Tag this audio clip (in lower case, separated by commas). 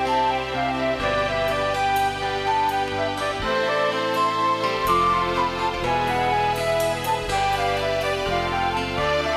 music